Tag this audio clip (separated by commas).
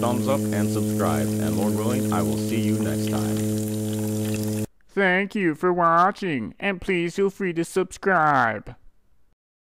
Speech